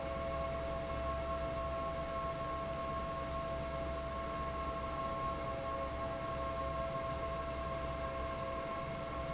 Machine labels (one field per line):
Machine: fan